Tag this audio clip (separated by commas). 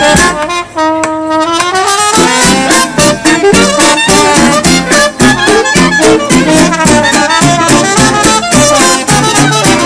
Trumpet, Clarinet, Brass instrument, Saxophone